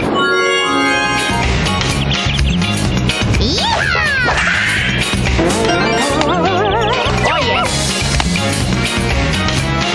Upbeat music plays birds chirp and sound effects go off